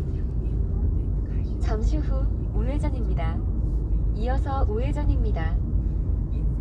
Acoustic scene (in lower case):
car